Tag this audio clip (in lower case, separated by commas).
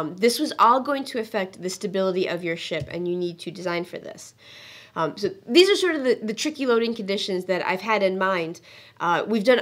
speech